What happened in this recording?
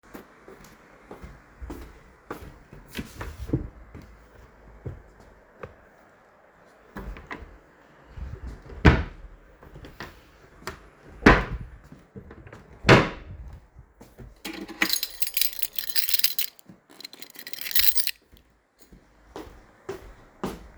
I walked toward the wardrobe and drawer and opened it. I then closed it, picked up and shook my keys, and walked away again. The keychain sound occurs clearly after the drawer action.